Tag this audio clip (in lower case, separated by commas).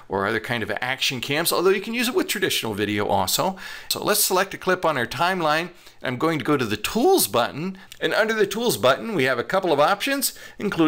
speech